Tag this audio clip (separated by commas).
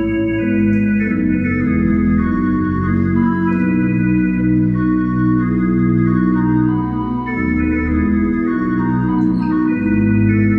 Hammond organ, Organ, playing hammond organ